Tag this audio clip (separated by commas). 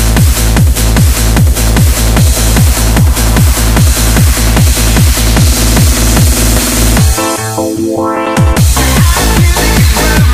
Music